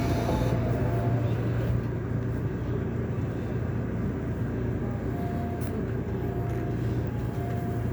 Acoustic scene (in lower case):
subway train